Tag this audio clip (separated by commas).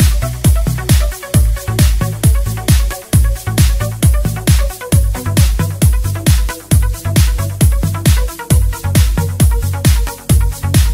Exciting music, Music